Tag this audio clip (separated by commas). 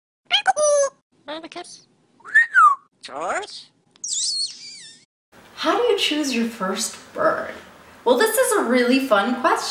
Bird, inside a small room, Speech